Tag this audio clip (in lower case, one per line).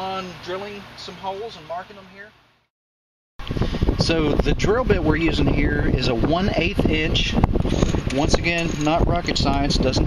speech